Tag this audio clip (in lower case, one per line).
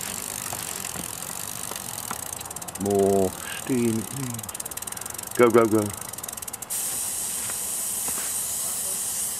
hiss
steam